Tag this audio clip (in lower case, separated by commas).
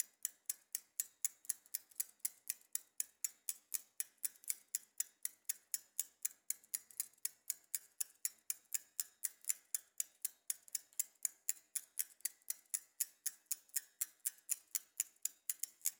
bicycle, vehicle